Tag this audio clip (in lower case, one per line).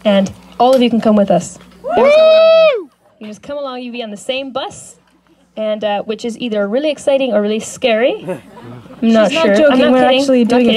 speech